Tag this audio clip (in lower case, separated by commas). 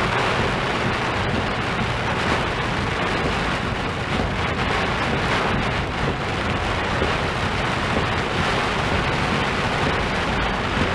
rain